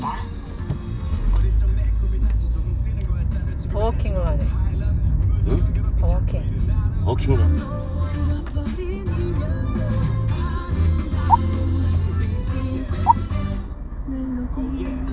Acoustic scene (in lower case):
car